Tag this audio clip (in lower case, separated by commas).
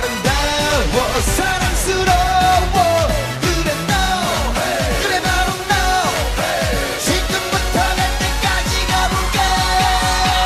music, singing